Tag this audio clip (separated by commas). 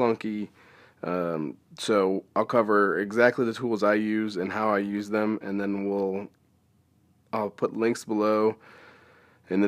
Speech